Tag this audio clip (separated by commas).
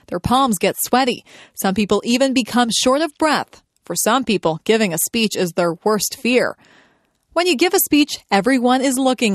Female speech, Speech